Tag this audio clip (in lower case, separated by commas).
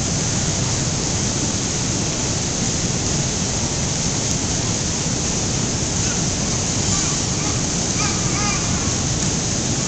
waterfall